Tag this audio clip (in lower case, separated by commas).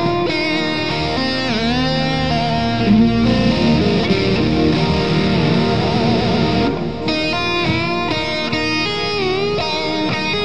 acoustic guitar, electric guitar, music, guitar, musical instrument